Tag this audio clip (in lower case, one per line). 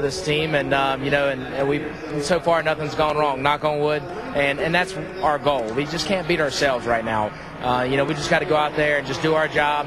speech